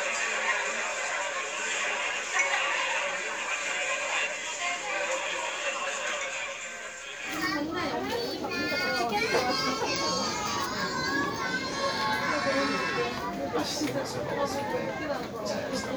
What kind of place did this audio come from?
crowded indoor space